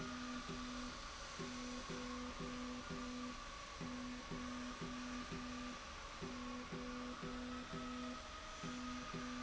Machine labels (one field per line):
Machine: slide rail